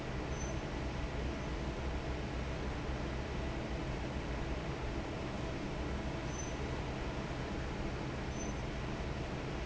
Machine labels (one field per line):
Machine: fan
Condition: normal